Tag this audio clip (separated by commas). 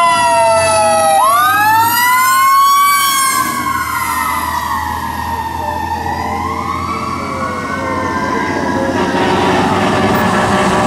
Truck, fire truck (siren), Speech, Vehicle